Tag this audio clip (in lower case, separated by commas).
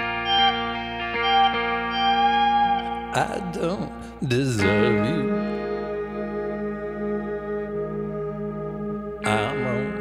effects unit, punk rock, music